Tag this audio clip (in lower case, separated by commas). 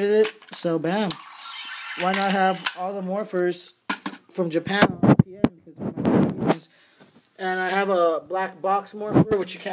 speech, cap gun